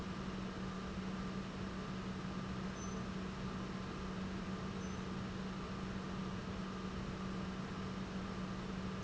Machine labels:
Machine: pump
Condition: normal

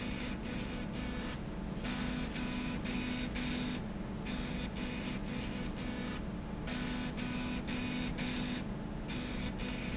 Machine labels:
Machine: slide rail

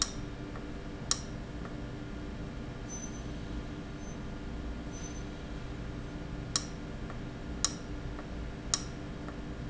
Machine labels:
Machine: valve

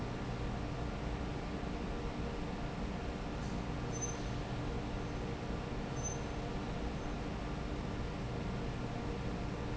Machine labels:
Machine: fan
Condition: normal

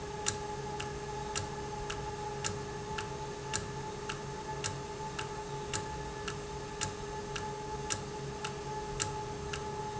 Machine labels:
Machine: valve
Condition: normal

